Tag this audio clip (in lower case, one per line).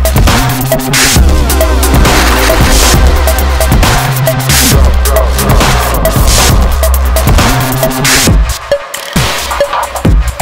music